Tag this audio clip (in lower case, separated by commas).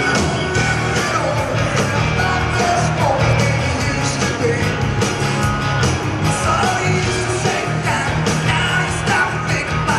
rock and roll, music